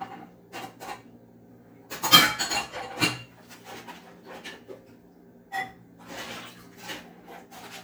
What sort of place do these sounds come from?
kitchen